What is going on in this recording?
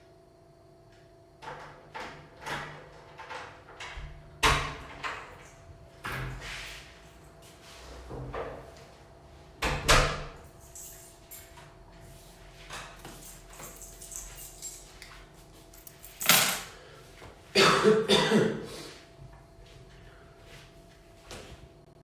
Opened the door, closed it, walked over to the counter and put down my keys, then I coughed.